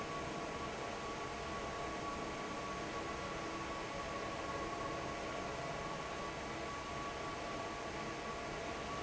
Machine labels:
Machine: fan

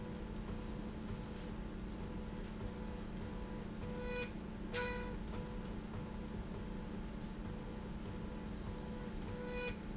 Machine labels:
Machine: slide rail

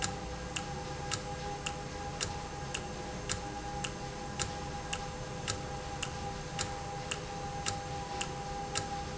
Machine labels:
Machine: valve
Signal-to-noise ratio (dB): -6 dB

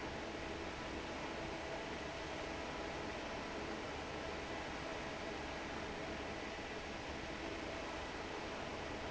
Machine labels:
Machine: fan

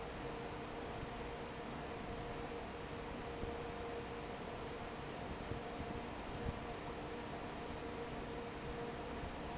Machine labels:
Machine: fan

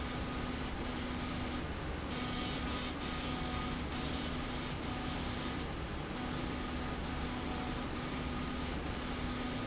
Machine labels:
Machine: slide rail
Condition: abnormal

